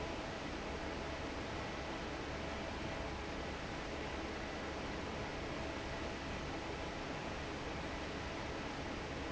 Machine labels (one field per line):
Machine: fan